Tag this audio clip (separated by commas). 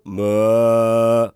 Human voice, Male singing, Singing